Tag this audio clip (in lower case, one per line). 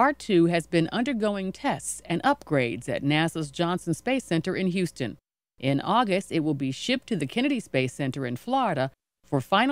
speech